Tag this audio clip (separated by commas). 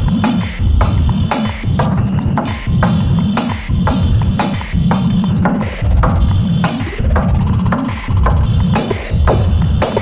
Throbbing